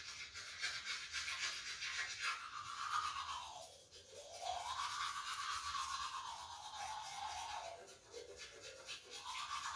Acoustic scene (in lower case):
restroom